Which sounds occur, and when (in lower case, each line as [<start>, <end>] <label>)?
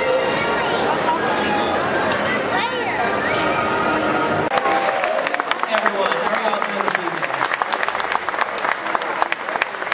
[0.00, 4.46] music
[0.00, 4.77] speech noise
[0.01, 9.93] background noise
[0.14, 0.94] child speech
[2.37, 3.15] child speech
[4.46, 9.93] clapping
[5.63, 7.28] man speaking
[7.59, 9.93] speech noise